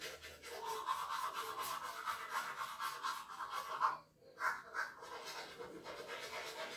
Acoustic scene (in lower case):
restroom